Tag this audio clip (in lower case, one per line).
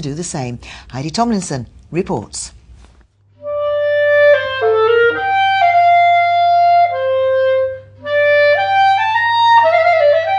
music
speech